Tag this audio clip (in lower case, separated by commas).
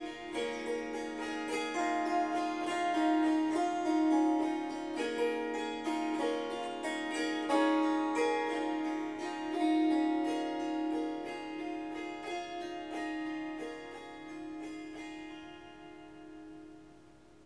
music, harp, musical instrument